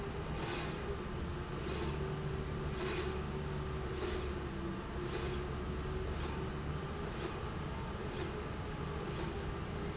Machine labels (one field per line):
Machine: slide rail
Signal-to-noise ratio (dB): -6 dB